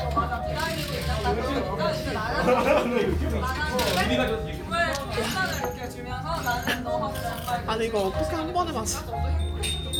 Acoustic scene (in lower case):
crowded indoor space